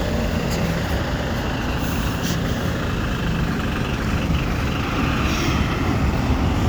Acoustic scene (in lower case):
residential area